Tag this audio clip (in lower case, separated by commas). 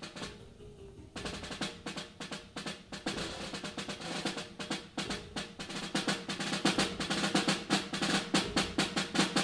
snare drum, drum roll, percussion, drum, playing snare drum